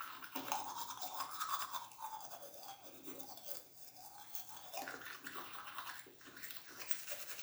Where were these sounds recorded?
in a restroom